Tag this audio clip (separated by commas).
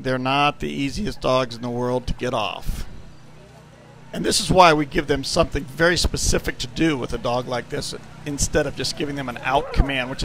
Dog, pets, Bow-wow, Speech, Animal